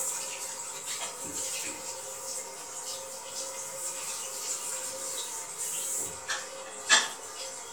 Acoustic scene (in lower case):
restroom